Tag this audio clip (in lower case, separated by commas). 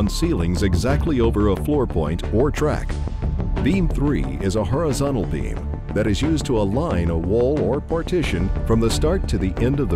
music, speech